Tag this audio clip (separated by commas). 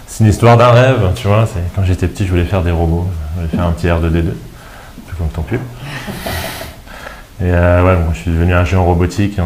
Music, Speech